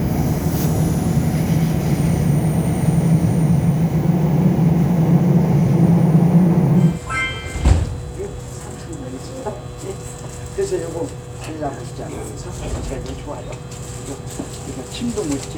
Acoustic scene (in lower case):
subway train